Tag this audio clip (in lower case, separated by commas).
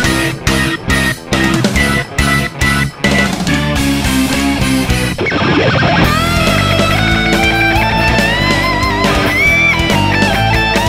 progressive rock